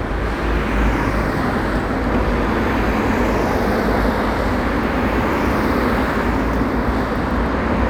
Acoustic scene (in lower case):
street